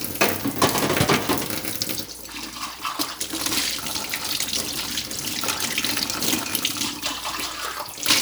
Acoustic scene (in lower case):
kitchen